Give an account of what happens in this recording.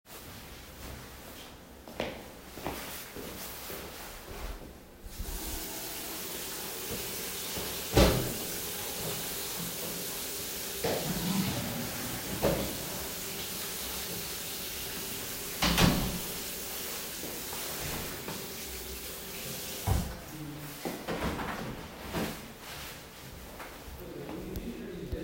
I walk into a bathroom put on a water tap and a someone opens a door.